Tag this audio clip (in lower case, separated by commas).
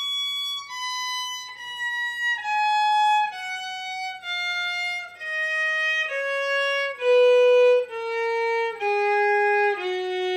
musical instrument, music, violin